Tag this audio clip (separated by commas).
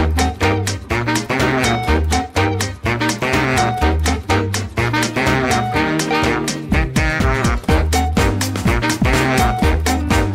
Swing music, Music